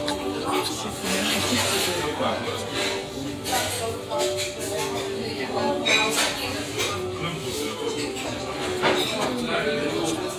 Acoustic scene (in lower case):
restaurant